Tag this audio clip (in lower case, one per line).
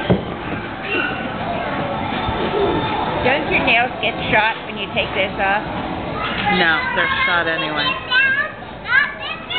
children playing
inside a public space
child speech
speech